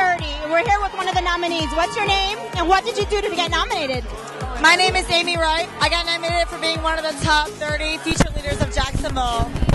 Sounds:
Music, Speech

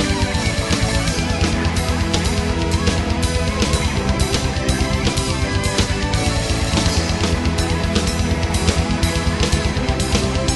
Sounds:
Music

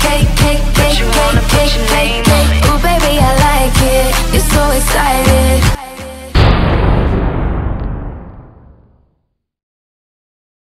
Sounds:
Music

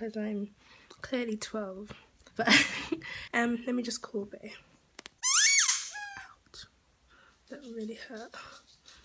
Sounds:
inside a small room, Speech, Squeak

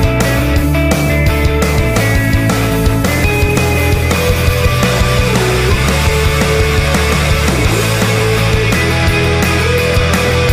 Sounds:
Music

